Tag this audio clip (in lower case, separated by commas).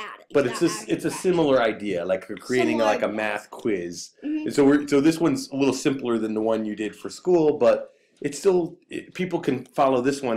speech